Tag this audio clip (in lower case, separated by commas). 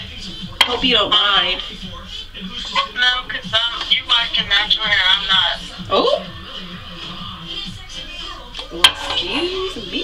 speech, inside a small room, music